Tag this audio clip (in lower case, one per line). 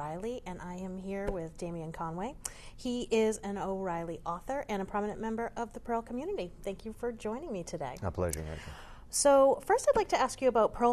speech